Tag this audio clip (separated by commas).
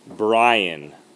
Speech, Human voice